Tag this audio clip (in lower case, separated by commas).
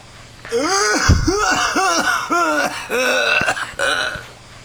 respiratory sounds, cough